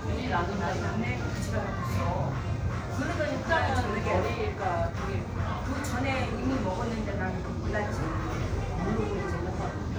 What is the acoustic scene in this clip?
crowded indoor space